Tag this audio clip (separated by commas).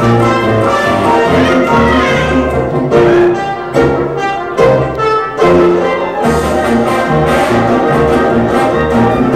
Music